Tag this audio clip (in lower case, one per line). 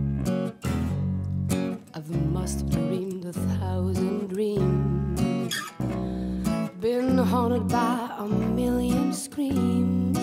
music